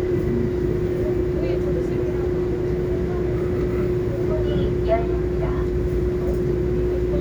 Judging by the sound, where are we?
on a subway train